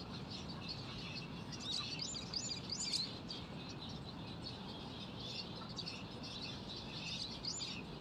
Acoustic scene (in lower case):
park